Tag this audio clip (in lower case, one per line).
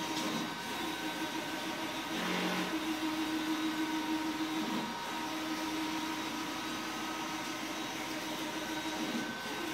printer
printer printing